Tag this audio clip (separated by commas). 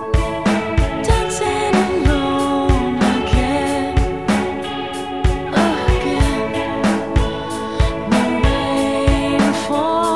Music